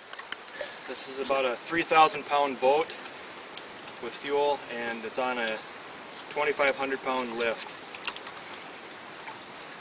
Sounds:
sailing ship, speech

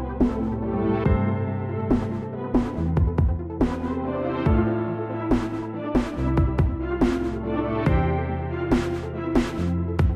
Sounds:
guitar, musical instrument, electric guitar, strum, music, plucked string instrument

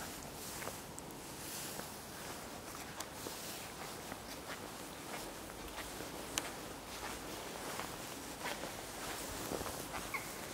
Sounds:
walk

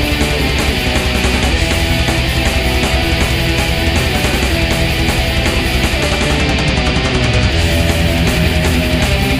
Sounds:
heavy metal, music

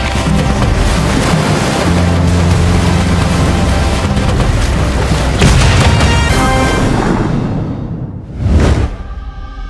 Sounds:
music

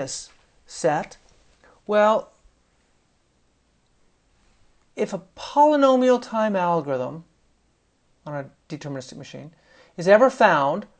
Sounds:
speech

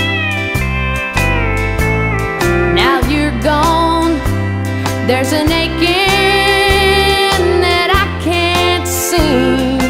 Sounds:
music, rhythm and blues

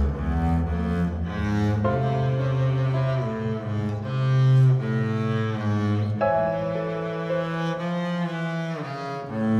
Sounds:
double bass, music, piano, musical instrument

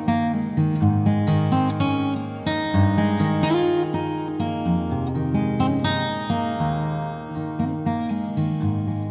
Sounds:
musical instrument, strum, plucked string instrument, music, guitar

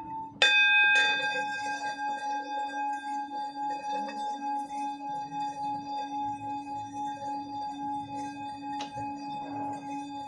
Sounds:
music, singing bowl

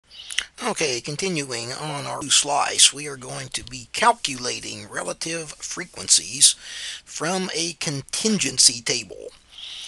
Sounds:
narration

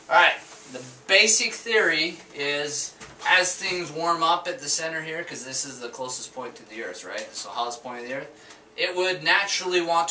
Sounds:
speech

